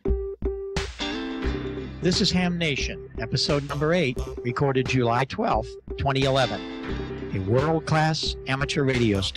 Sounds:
music, speech

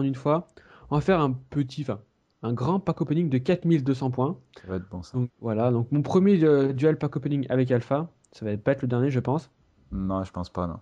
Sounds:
speech

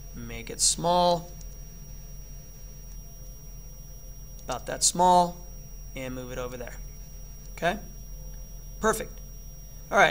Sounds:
speech

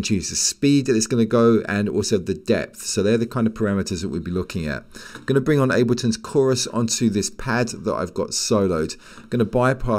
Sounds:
speech

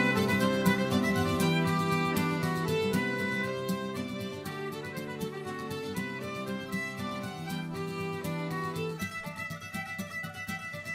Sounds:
music

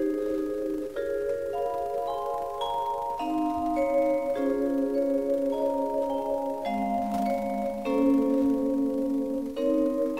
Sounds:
music, xylophone, vibraphone

